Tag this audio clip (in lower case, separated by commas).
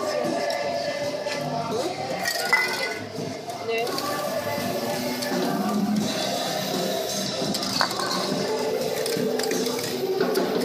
speech, music, spray